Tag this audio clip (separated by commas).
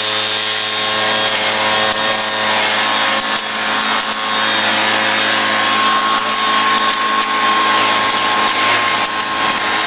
Vacuum cleaner